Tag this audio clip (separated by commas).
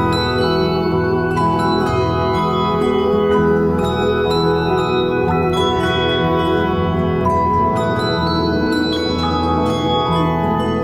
Music